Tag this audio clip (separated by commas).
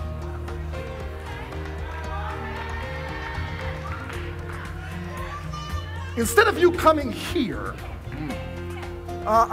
Speech, Music